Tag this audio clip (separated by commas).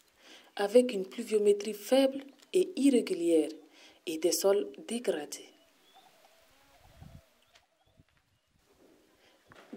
Speech